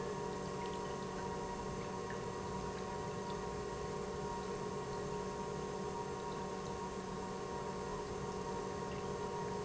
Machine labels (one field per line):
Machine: pump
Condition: normal